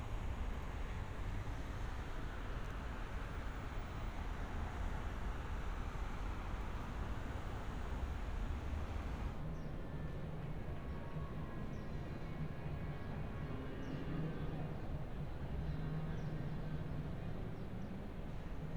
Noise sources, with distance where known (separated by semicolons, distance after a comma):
background noise